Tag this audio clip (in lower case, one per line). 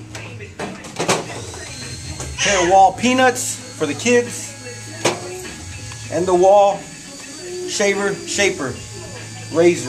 tools
speech